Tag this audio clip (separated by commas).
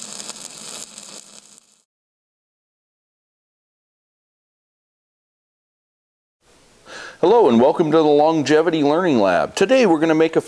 arc welding